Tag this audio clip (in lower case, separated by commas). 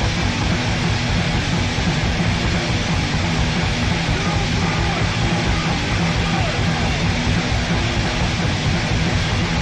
music, white noise